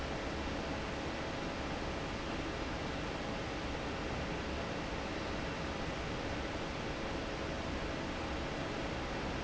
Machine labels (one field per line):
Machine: fan